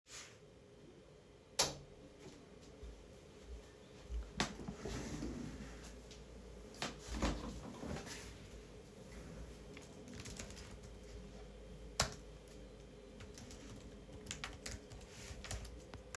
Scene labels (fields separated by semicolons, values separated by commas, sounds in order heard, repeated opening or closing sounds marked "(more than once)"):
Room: bedroom; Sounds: light switch, footsteps, keyboard typing